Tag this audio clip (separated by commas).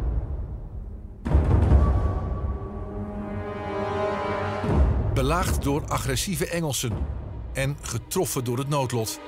Music, Speech